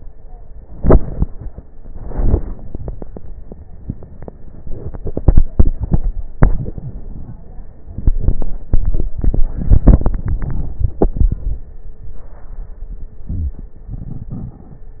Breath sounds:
13.14-13.80 s: inhalation
13.14-13.80 s: crackles
13.82-15.00 s: exhalation
13.82-15.00 s: crackles

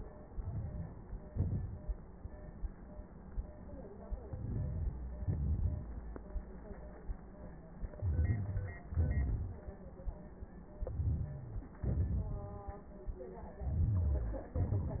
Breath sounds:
0.27-0.86 s: inhalation
1.31-1.90 s: exhalation
4.25-4.93 s: inhalation
5.24-5.92 s: exhalation
7.99-8.80 s: rhonchi
8.01-8.82 s: inhalation
8.90-9.72 s: exhalation
10.83-11.67 s: inhalation
10.83-11.69 s: rhonchi
11.90-12.73 s: exhalation
13.60-14.54 s: inhalation
13.62-14.52 s: rhonchi

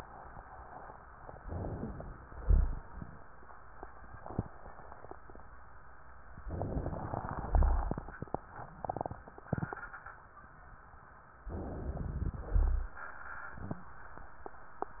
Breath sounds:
1.39-2.22 s: inhalation
2.39-2.89 s: exhalation
2.39-2.89 s: rhonchi
6.47-7.42 s: inhalation
7.42-8.03 s: exhalation
7.42-8.03 s: rhonchi
11.48-12.48 s: inhalation
12.48-13.04 s: exhalation
12.48-13.04 s: rhonchi

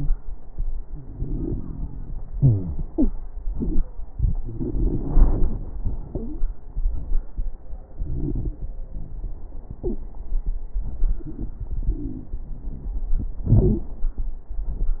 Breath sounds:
1.03-2.30 s: inhalation
1.03-2.30 s: crackles
2.33-2.82 s: wheeze
2.33-3.11 s: exhalation
2.90-3.12 s: wheeze
4.15-5.77 s: inhalation
4.15-5.77 s: crackles
7.93-8.67 s: inhalation
7.93-8.67 s: crackles
9.83-10.02 s: wheeze
10.86-13.07 s: inhalation
11.73-13.07 s: wheeze
13.45-13.92 s: exhalation

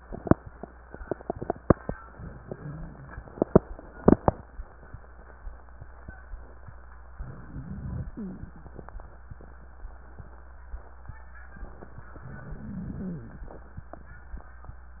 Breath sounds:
7.17-8.53 s: inhalation
7.17-8.53 s: wheeze
12.19-13.55 s: inhalation
12.19-13.55 s: wheeze

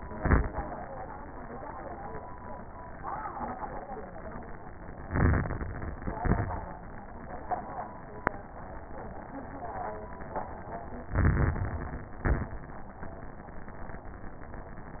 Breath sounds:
0.00-0.55 s: exhalation
0.00-0.55 s: crackles
5.05-6.04 s: inhalation
5.05-6.04 s: crackles
6.18-6.72 s: exhalation
6.18-6.72 s: crackles
11.06-12.04 s: inhalation
11.06-12.04 s: crackles
12.18-12.67 s: exhalation
12.18-12.67 s: crackles

